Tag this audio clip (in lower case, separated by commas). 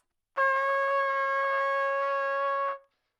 brass instrument, trumpet, music, musical instrument